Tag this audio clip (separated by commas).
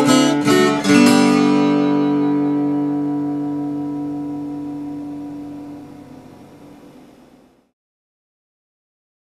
Musical instrument, Acoustic guitar, Music, Guitar, Strum, Plucked string instrument